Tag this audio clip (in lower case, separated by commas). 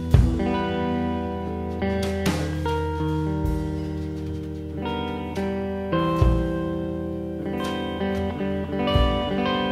music